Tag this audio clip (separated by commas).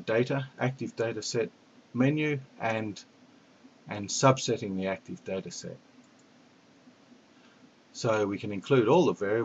Speech